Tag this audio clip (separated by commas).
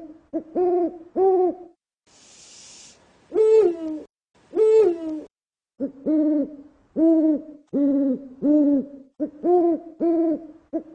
owl hooting